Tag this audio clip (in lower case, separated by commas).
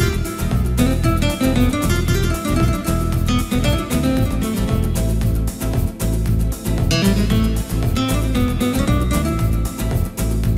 music